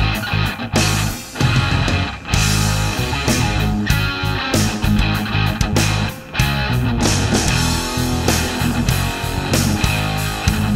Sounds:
bass guitar
plucked string instrument
musical instrument
guitar
music
strum

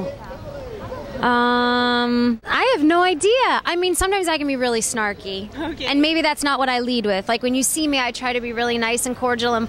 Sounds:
speech

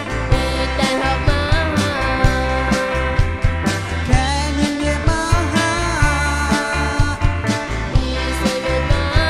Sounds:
independent music
music

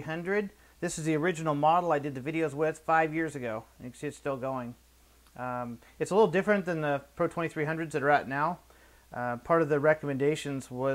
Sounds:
speech

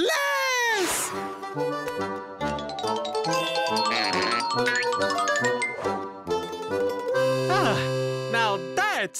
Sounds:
music
speech

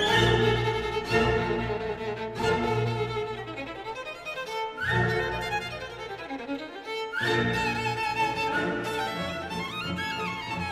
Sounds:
music
musical instrument
fiddle

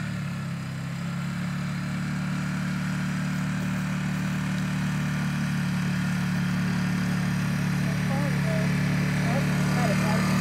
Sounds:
speech

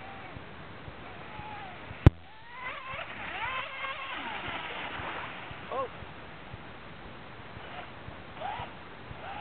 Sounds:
speech

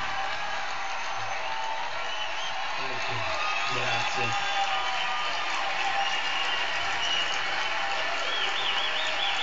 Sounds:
male speech
speech

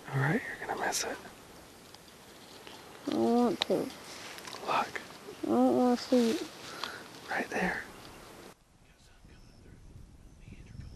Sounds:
speech

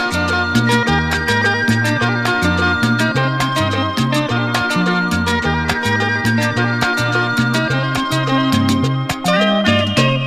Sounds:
music

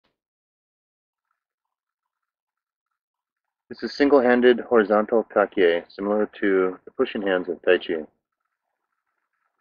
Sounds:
speech

